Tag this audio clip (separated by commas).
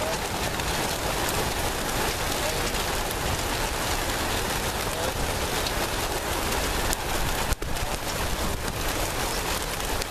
Pigeon, Speech